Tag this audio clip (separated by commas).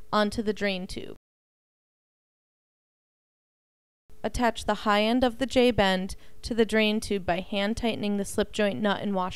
Speech